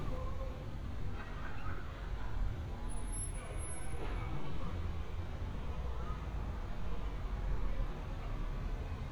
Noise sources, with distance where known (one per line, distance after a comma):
person or small group talking, far